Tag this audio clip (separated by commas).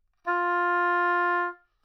Music, Musical instrument, Wind instrument